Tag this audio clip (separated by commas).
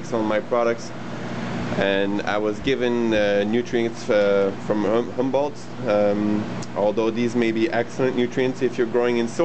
Speech